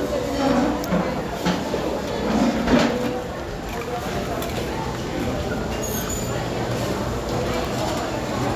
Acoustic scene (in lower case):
crowded indoor space